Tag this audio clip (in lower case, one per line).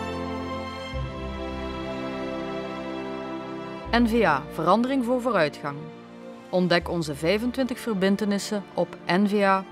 music
speech